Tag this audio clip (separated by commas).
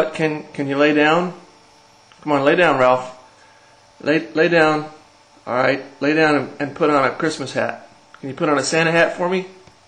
Speech